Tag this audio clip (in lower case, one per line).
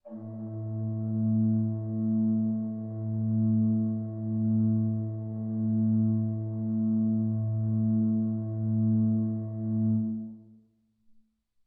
keyboard (musical)
musical instrument
music
organ